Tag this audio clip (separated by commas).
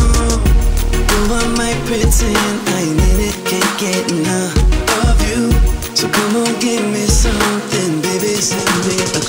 Music